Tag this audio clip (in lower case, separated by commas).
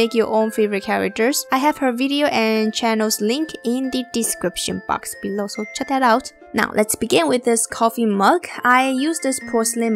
speech, music